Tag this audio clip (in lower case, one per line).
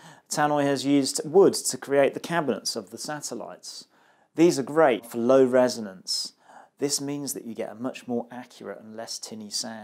speech